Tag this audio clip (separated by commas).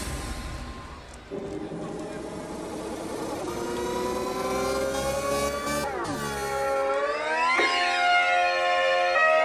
Music, Electronic music